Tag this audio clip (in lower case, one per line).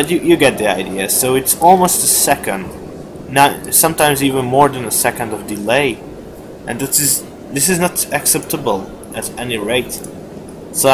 speech